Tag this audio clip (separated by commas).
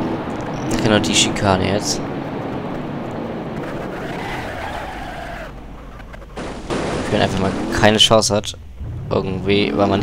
Vehicle, Speech, auto racing, Car